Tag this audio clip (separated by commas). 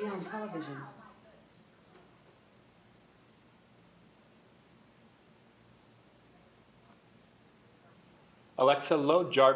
Speech